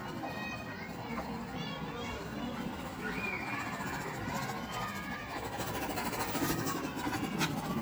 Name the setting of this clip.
park